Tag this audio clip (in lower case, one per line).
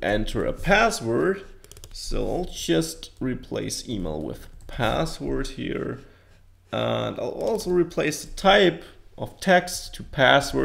computer keyboard